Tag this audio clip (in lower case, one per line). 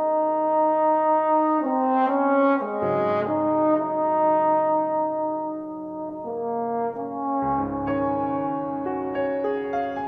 brass instrument
playing french horn
french horn